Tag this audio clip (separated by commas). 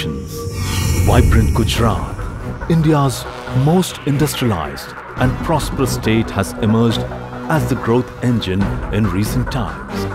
Music, Speech